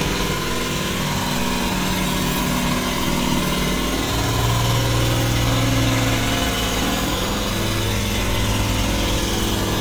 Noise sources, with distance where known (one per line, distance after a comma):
jackhammer